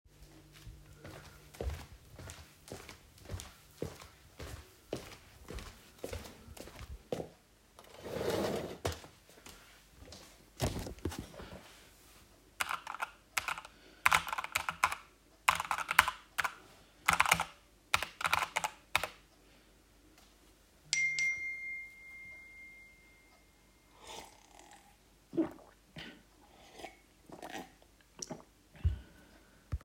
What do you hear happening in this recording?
I walked into the office, then moved the chair and then sat. Then I started typing on my keyboard and then my phone recieved two notifications. Finally I lifted my mug and took a sip